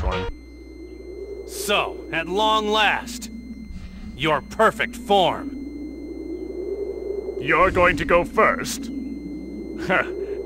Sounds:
speech

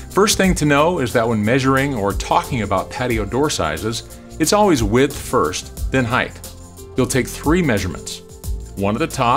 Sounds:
music, speech

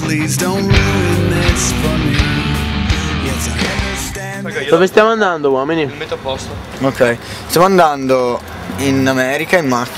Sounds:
music, speech

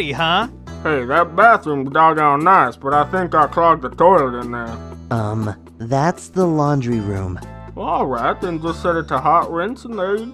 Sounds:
music, speech

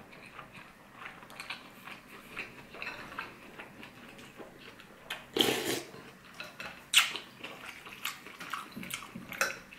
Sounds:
people eating noodle

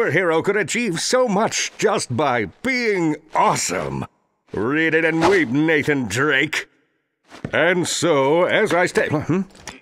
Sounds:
speech

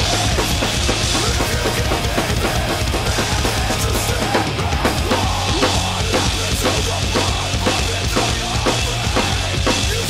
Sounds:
bass drum, rimshot, percussion, drum kit, snare drum, drum, drum roll

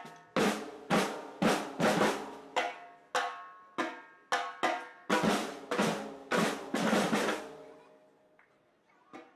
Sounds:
snare drum, percussion, drum roll, drum

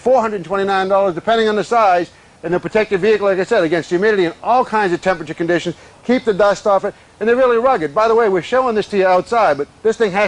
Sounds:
speech

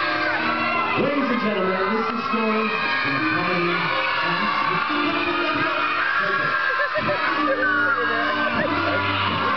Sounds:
crowd, cheering

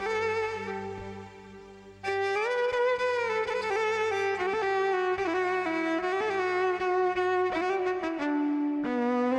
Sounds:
music, musical instrument, fiddle

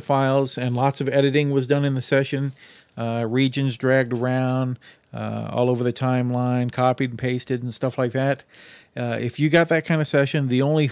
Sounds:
speech

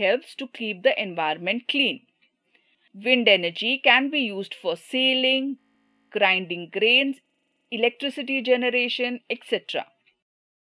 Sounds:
speech

